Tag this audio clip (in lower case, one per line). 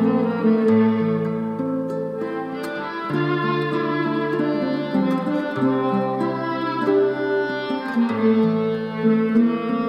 music